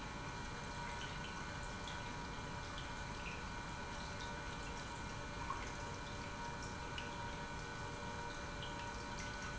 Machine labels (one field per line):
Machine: pump